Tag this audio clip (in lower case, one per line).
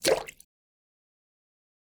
liquid
splash